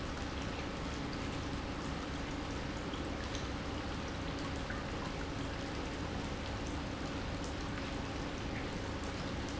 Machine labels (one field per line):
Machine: pump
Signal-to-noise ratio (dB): -6 dB